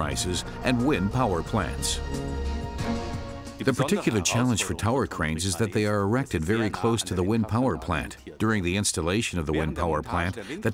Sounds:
music
speech

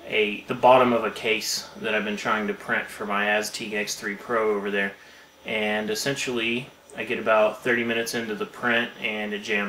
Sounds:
speech

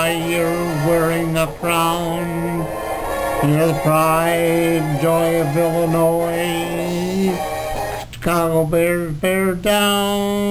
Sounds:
music
male singing

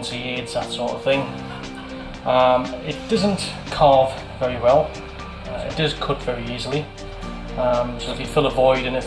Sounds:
music
speech

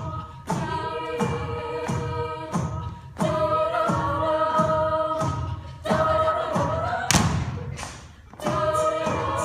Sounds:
thump
music
singing
a capella

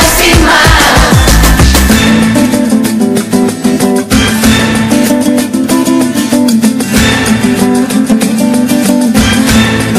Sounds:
pop music
music

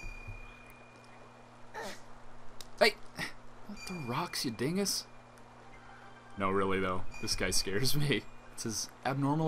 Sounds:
speech

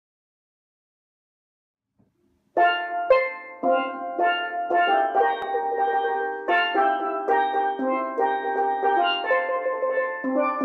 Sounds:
playing steelpan

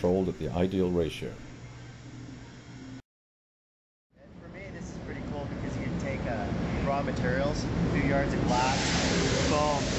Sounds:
speech

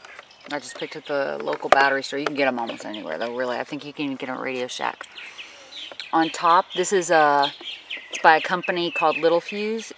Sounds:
bird vocalization
speech

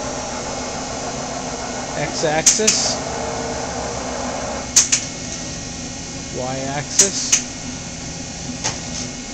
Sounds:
speech

